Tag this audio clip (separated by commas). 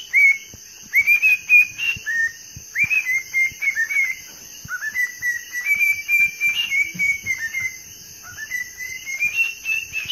bird chirping